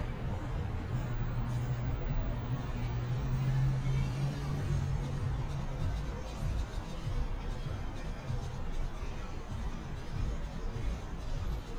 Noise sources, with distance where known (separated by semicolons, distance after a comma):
engine of unclear size; music from an unclear source